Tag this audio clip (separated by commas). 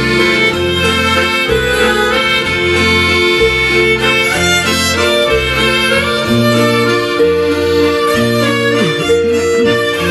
Accordion, playing accordion